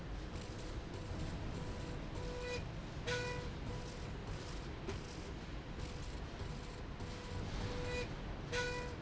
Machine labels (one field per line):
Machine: slide rail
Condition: normal